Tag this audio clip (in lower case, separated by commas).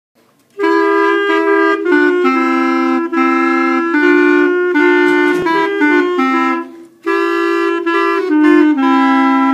playing clarinet